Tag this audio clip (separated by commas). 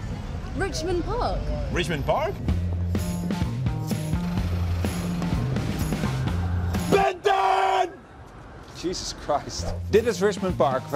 Speech, Music